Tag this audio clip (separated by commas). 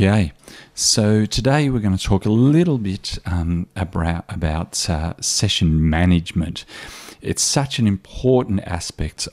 Speech